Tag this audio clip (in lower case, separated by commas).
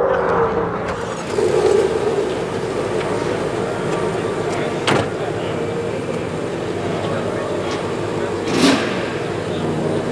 speech